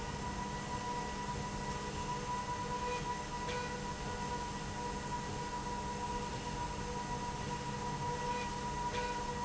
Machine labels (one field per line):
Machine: slide rail